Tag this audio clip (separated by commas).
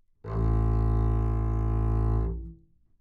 Music, Bowed string instrument, Musical instrument